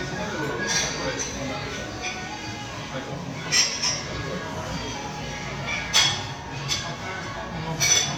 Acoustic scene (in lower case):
crowded indoor space